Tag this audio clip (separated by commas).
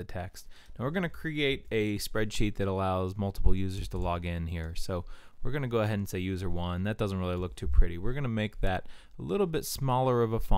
Speech